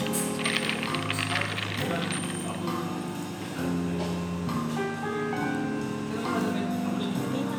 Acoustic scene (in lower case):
cafe